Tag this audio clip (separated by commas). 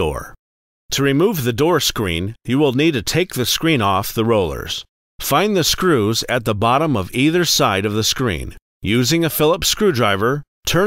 Speech